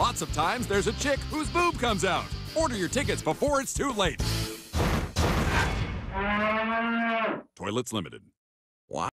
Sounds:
Speech, Music

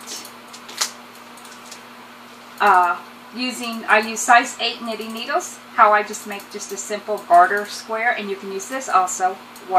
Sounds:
Speech, inside a small room

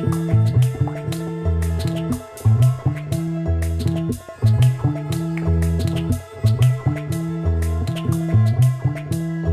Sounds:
Music

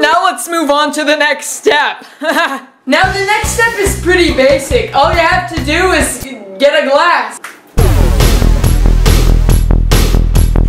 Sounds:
Speech, Music

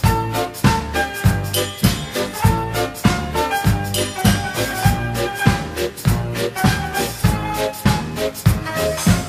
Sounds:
Music

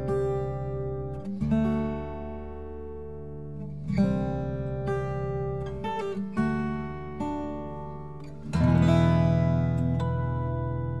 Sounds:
Acoustic guitar, Music

